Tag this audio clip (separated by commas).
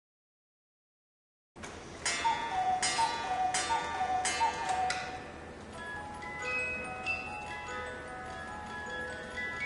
Music, Tick-tock